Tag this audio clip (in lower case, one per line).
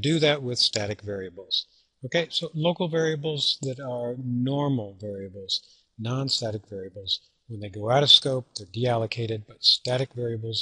speech